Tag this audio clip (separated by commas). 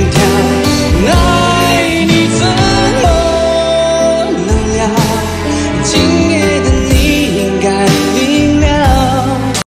Music, Male singing